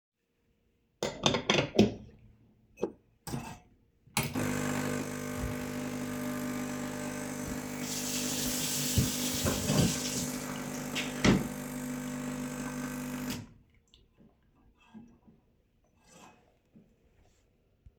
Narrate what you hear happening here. i mount the portafilter onto the coffee machine, place a cup below it and turn on the machine. then i turn on the water of the kitchen sink and off again, while accidently hitting a chair. then i turn the coffee machine off and remove the cup.